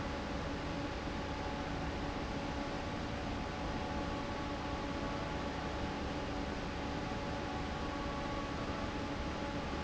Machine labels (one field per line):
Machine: fan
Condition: normal